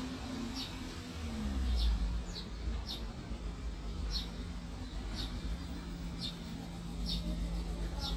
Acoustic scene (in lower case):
residential area